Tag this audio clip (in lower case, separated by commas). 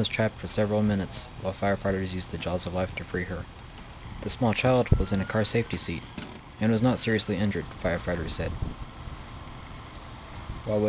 vehicle, speech